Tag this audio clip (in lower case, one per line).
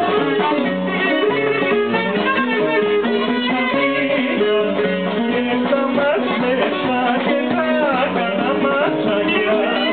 musical instrument
music